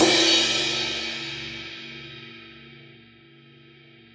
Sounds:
Crash cymbal, Percussion, Cymbal, Music, Musical instrument

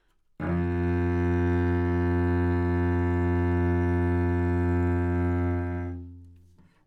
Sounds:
Bowed string instrument, Music, Musical instrument

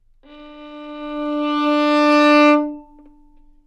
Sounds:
Music, Musical instrument, Bowed string instrument

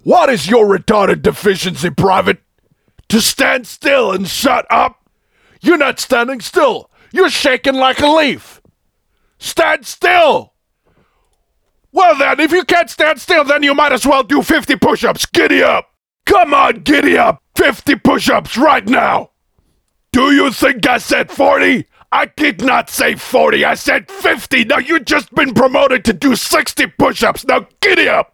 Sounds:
Shout, Yell, Human voice

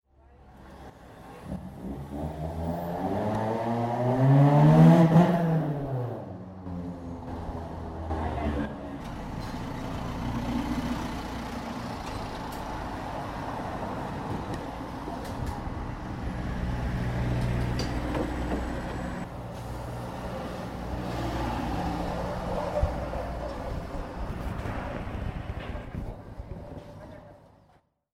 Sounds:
Engine, Car, Vehicle, Motor vehicle (road), Accelerating, Car passing by, Motorcycle, Human group actions, Chatter, roadway noise

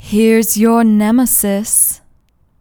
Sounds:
Human voice, Speech

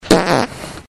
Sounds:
Fart

